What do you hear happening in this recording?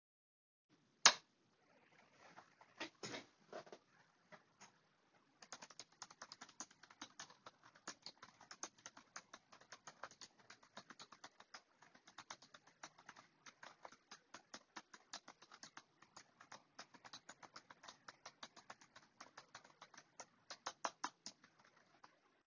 I switched on the light and then typed on the keyboard for a few seconds.